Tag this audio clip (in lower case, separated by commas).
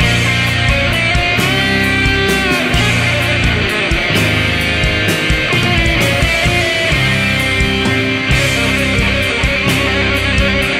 music, progressive rock, rock music, heavy metal